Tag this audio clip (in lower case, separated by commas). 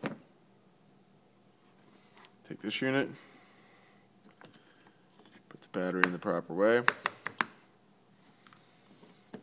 speech